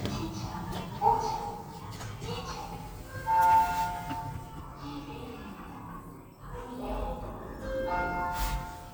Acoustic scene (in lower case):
elevator